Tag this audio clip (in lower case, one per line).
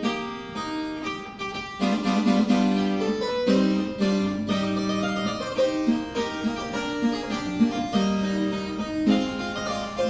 playing harpsichord